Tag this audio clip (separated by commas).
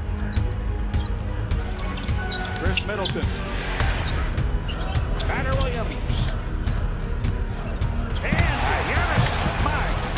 Music, Speech, Basketball bounce